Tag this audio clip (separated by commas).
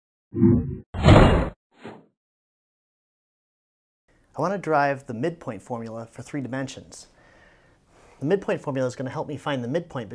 inside a small room, Speech